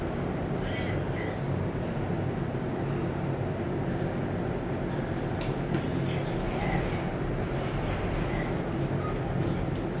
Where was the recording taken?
in an elevator